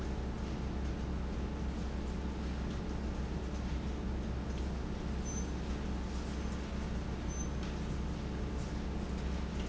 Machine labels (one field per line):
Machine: fan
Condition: abnormal